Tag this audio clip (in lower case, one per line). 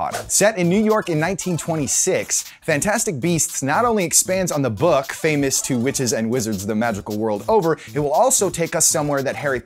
speech
music